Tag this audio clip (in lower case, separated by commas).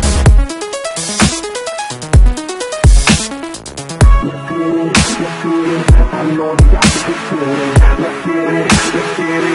techno, music, electronic music, electronica